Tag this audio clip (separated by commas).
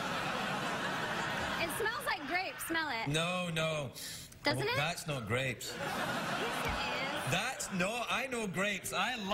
Speech